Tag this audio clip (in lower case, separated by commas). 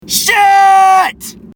yell, shout, human voice